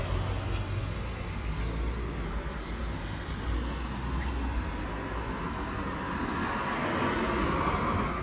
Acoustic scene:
residential area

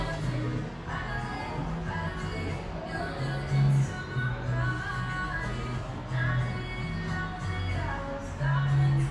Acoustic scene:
cafe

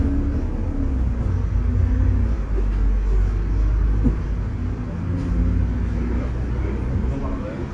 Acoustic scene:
bus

